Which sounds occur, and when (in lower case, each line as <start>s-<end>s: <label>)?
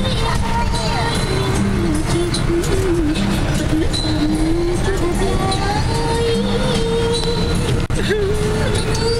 0.0s-3.2s: female singing
0.0s-9.1s: bus
0.0s-9.1s: music
3.6s-7.6s: female singing
7.9s-9.1s: female singing